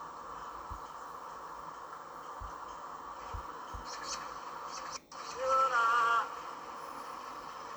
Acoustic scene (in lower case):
park